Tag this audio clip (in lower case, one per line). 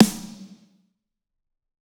drum
music
musical instrument
percussion
snare drum